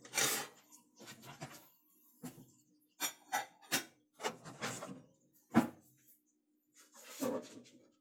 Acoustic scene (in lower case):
kitchen